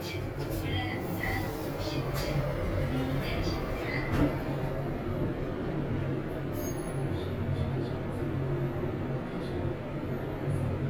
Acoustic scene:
elevator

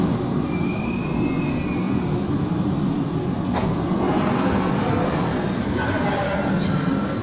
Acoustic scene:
subway train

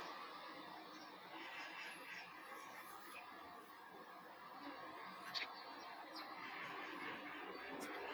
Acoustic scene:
residential area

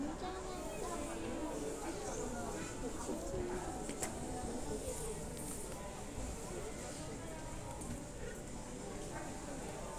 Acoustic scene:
crowded indoor space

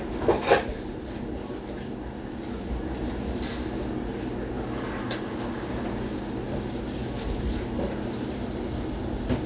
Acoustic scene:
cafe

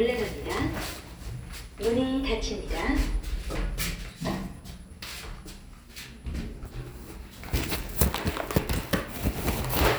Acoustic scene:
elevator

